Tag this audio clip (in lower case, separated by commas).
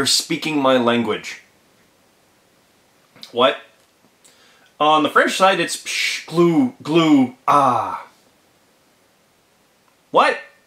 inside a small room, speech